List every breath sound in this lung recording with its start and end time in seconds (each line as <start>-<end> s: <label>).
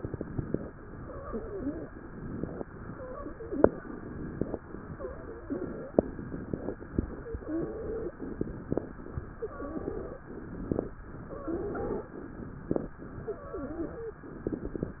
0.00-0.74 s: inhalation
0.87-1.92 s: exhalation
0.87-1.92 s: wheeze
2.03-2.66 s: inhalation
2.73-3.78 s: wheeze
2.77-3.81 s: exhalation
3.85-4.61 s: inhalation
4.89-5.94 s: exhalation
4.89-5.94 s: wheeze
5.98-6.74 s: inhalation
7.02-8.16 s: exhalation
7.02-8.16 s: wheeze
8.23-9.15 s: inhalation
9.37-10.29 s: exhalation
9.37-10.29 s: wheeze
10.28-11.04 s: inhalation
11.14-12.16 s: exhalation
11.14-12.16 s: wheeze
12.20-12.96 s: inhalation
13.24-14.27 s: exhalation
13.24-14.27 s: wheeze